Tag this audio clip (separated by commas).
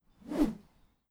swish